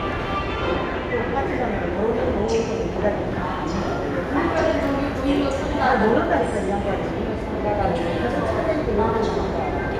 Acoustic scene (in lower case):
subway station